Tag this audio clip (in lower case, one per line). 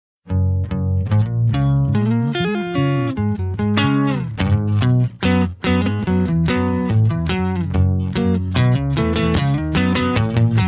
plucked string instrument
music
electronic tuner
guitar
bass guitar